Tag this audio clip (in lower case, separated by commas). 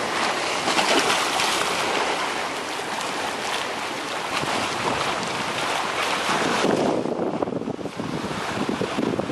ocean, ocean burbling